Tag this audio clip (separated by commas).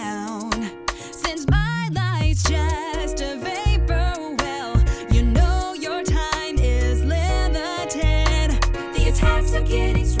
Music